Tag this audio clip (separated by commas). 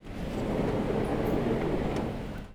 Car, Vehicle, Motor vehicle (road)